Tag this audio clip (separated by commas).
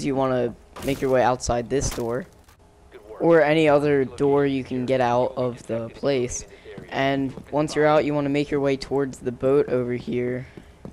Speech